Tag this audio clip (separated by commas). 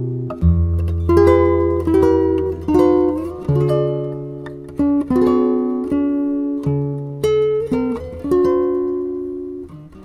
Musical instrument, Plucked string instrument, Guitar, Music